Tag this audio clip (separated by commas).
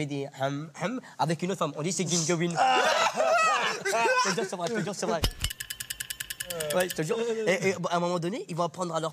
Speech